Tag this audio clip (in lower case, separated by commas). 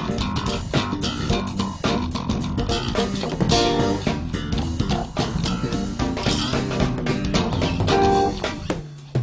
music, rimshot, bass guitar, plucked string instrument